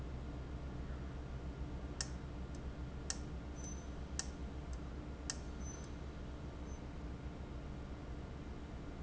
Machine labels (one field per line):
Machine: valve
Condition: abnormal